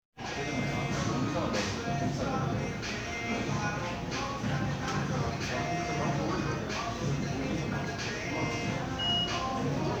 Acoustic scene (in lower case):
crowded indoor space